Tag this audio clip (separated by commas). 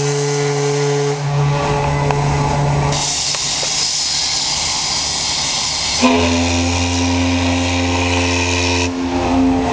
Steam, Steam whistle, Hiss